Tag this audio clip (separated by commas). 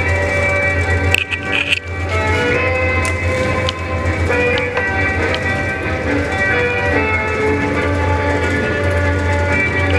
Music, Clip-clop